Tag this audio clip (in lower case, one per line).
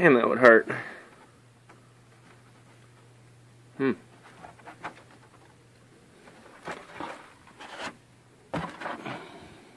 speech